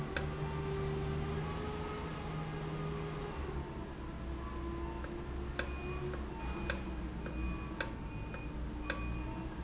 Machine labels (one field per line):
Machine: valve